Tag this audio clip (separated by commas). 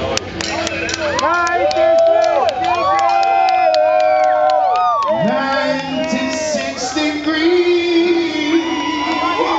Speech, Music